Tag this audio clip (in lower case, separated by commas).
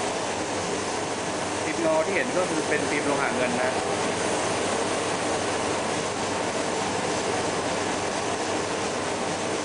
speech, spray